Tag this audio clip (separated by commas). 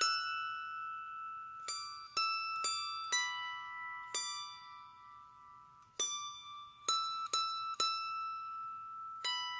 playing zither